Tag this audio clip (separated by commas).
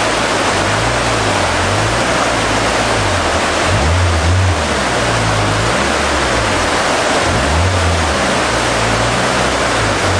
Stream